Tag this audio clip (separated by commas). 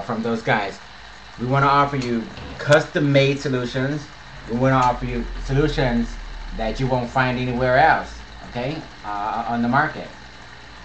inside a small room, Speech